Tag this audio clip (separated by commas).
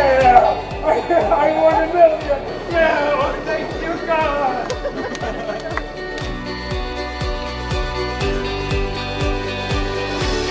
Music, Speech